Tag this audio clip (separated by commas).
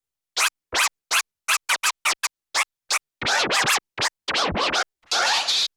Scratching (performance technique), Music, Musical instrument